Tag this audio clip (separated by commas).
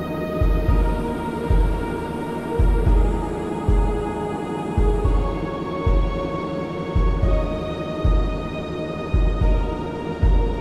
Music